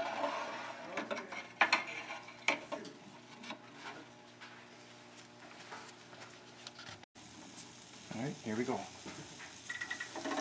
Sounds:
Speech

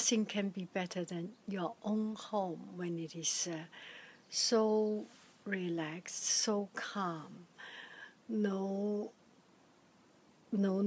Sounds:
Speech

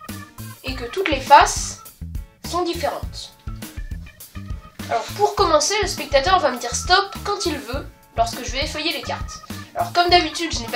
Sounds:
Speech, Music

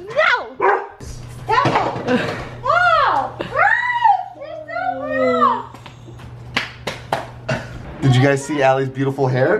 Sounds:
Bow-wow

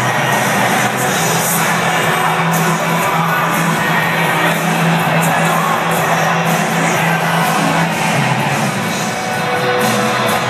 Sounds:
Cheering, Music

